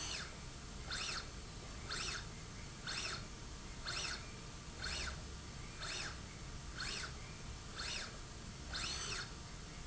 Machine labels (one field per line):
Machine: slide rail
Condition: normal